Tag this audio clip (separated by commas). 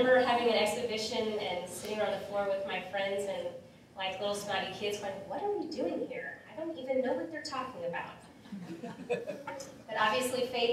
Narration, woman speaking, Speech